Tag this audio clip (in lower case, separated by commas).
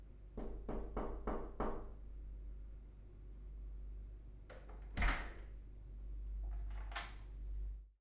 home sounds, knock, door